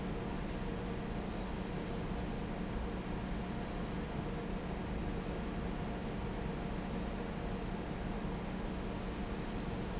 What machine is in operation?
fan